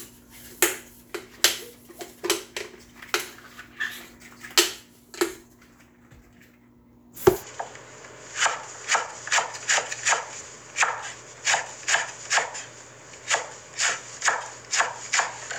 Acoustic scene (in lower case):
kitchen